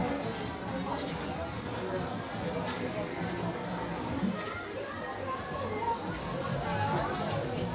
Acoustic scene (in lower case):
crowded indoor space